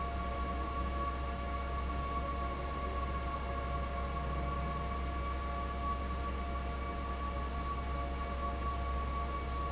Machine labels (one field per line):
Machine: fan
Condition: abnormal